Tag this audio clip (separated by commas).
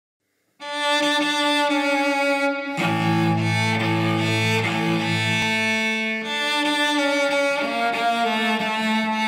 Cello, Music